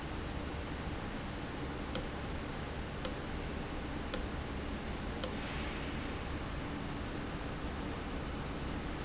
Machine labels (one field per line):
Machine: valve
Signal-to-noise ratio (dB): -6 dB